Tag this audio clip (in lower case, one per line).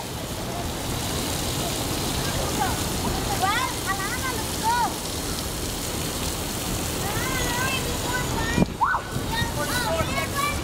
rain
water